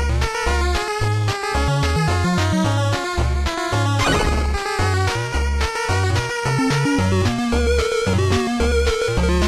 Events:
[0.00, 9.45] music
[3.96, 4.42] sound effect

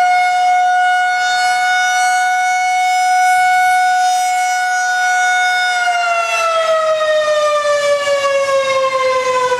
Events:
[0.00, 9.55] civil defense siren

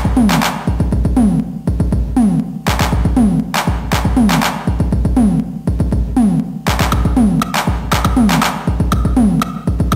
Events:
[0.00, 9.95] music

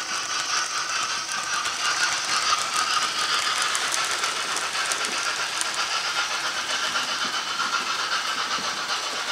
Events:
[0.00, 9.31] mechanisms
[1.51, 1.66] generic impact sounds
[4.92, 5.14] generic impact sounds
[7.07, 7.29] generic impact sounds
[7.57, 7.79] generic impact sounds
[8.24, 8.59] generic impact sounds
[9.00, 9.18] generic impact sounds

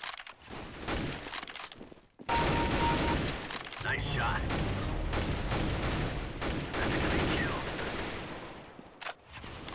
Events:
[0.00, 0.29] generic impact sounds
[0.00, 9.74] video game sound
[0.36, 1.15] gunfire
[1.17, 1.66] generic impact sounds
[1.24, 2.02] walk
[2.18, 3.24] machine gun
[2.24, 2.40] bleep
[2.56, 2.67] bleep
[2.79, 2.89] bleep
[2.99, 3.18] bleep
[3.25, 3.37] tools
[3.39, 3.79] generic impact sounds
[3.79, 4.35] male speech
[4.44, 4.62] gunfire
[5.07, 5.28] gunfire
[5.46, 5.59] gunfire
[5.78, 6.04] gunfire
[6.34, 6.54] gunfire
[6.65, 8.57] fusillade
[6.77, 7.60] radio
[8.80, 8.93] walk
[8.99, 9.18] generic impact sounds
[9.24, 9.74] surface contact
[9.63, 9.74] generic impact sounds

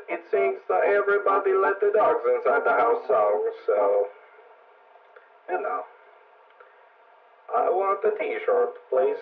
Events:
[0.00, 3.02] music
[0.00, 3.04] synthetic singing
[0.00, 9.21] mechanisms
[3.09, 4.07] speech synthesizer
[5.00, 5.06] tick
[5.15, 5.20] tick
[5.45, 5.84] speech synthesizer
[6.47, 6.52] tick
[6.58, 6.62] tick
[7.43, 8.76] speech synthesizer
[8.74, 8.80] tick
[8.89, 9.21] speech synthesizer

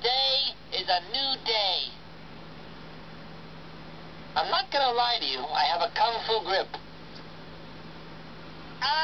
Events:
[0.00, 9.03] mechanisms
[0.02, 0.55] man speaking
[0.71, 1.91] man speaking
[0.74, 0.88] generic impact sounds
[4.38, 6.83] man speaking
[6.76, 6.82] generic impact sounds
[7.11, 7.25] tick
[8.83, 8.97] generic impact sounds

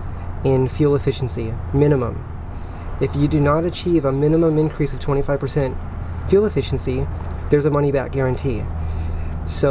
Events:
[0.01, 9.70] background noise
[0.32, 2.22] man speaking
[2.95, 5.71] man speaking
[6.19, 7.02] man speaking
[7.37, 8.78] man speaking

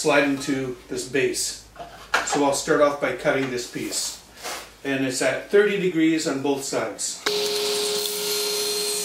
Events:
[0.00, 0.72] male speech
[0.00, 7.22] mechanisms
[0.86, 1.60] male speech
[1.71, 2.06] surface contact
[2.10, 2.29] generic impact sounds
[2.15, 4.16] male speech
[3.34, 3.47] generic impact sounds
[4.37, 4.67] surface contact
[4.84, 7.22] male speech
[7.23, 9.04] power saw

